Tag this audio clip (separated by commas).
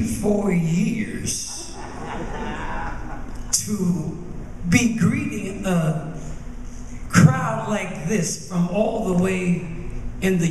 Speech